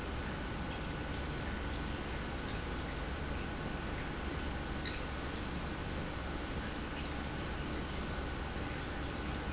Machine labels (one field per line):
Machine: pump